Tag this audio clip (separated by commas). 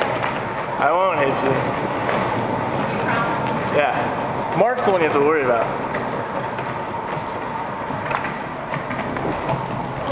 Speech